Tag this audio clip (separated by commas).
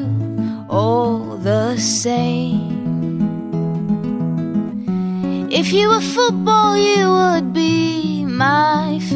Music